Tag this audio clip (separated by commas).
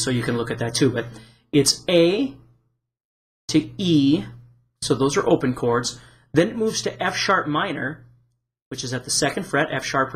Speech